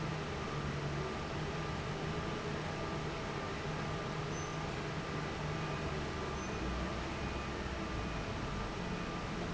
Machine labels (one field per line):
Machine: fan